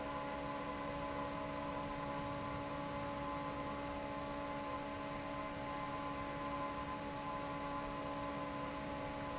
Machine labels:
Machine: fan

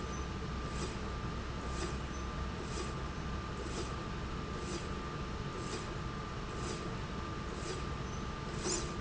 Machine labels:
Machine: slide rail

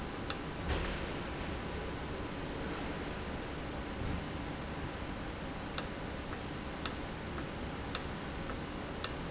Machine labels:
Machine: valve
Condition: normal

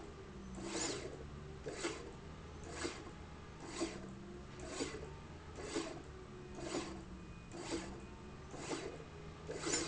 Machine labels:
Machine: slide rail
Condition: abnormal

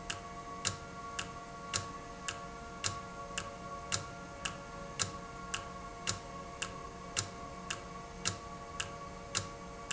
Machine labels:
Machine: valve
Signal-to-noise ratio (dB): 0 dB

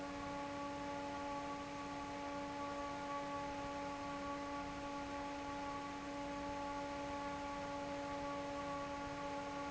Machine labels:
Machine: fan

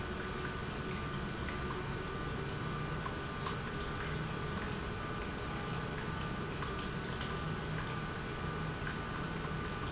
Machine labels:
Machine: pump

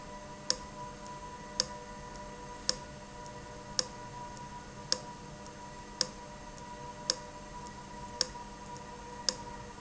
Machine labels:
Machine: valve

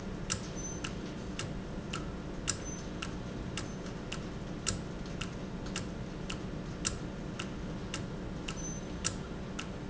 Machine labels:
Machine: valve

